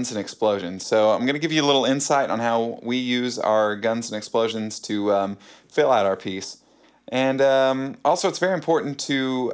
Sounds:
Speech

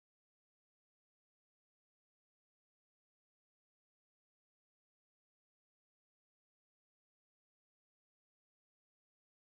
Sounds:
Silence

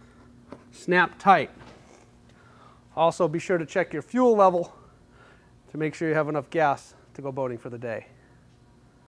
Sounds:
Speech

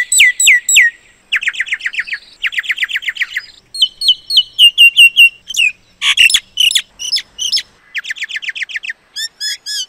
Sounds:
mynah bird singing

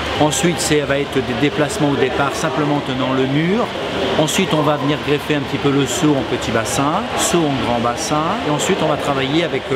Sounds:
Speech

